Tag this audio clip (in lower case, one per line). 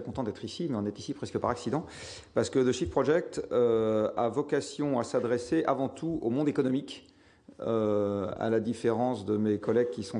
speech